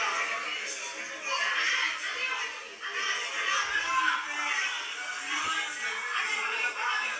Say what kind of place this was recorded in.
crowded indoor space